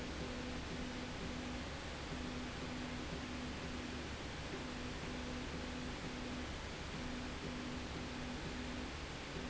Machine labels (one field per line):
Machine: slide rail